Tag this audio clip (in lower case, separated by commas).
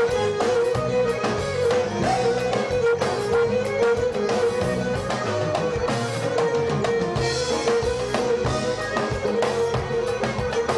music